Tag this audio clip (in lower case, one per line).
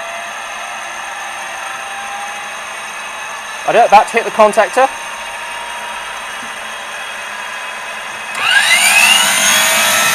medium engine (mid frequency)
idling
speech
engine